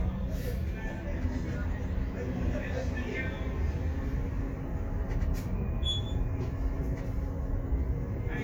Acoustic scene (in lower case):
bus